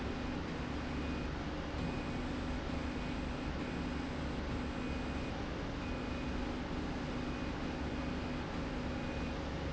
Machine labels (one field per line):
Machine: slide rail